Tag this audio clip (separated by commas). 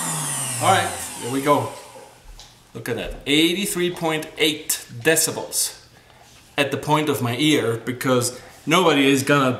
Blender, Vibration, Speech